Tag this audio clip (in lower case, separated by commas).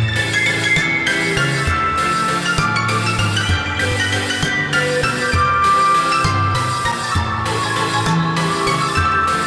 music